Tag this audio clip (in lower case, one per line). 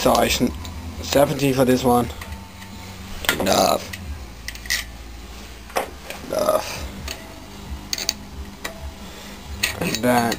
speech